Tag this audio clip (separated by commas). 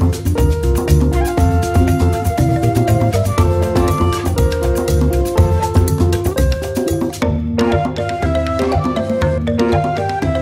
Music